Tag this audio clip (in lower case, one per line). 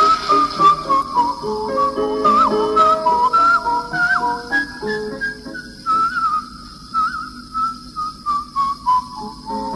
whistle